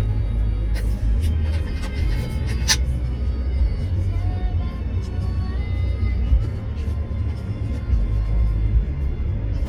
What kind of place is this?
car